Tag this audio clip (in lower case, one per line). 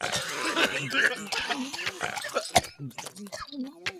cough
respiratory sounds